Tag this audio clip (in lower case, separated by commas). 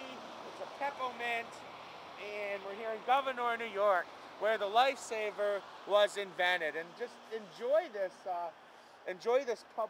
speech